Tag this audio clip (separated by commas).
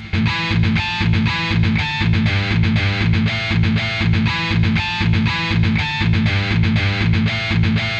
Music, Guitar, Musical instrument, Electric guitar, Plucked string instrument